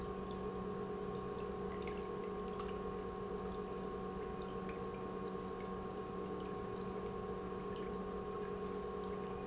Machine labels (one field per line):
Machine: pump